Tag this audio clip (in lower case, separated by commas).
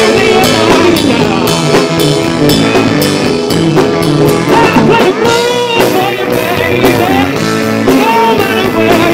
music, guitar, electric guitar, plucked string instrument, strum, musical instrument